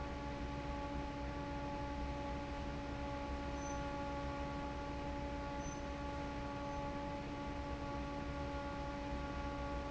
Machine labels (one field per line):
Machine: fan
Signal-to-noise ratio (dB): 0 dB